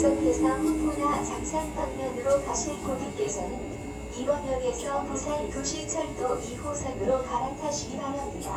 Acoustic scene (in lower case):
subway train